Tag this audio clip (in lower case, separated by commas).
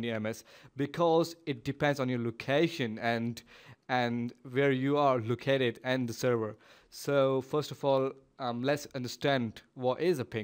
speech